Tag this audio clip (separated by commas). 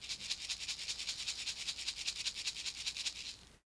Percussion, Musical instrument, Rattle (instrument), Music